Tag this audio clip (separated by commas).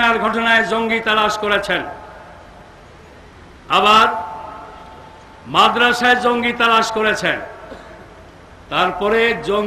monologue, Male speech, Speech